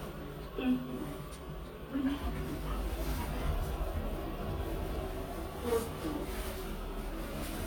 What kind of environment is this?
elevator